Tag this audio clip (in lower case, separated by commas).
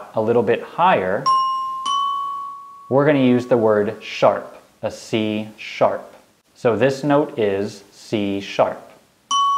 glockenspiel, mallet percussion, xylophone